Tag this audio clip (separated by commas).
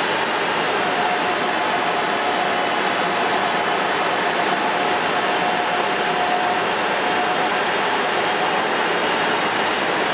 Vehicle